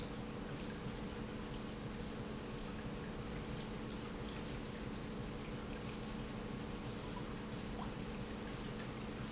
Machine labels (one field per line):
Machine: pump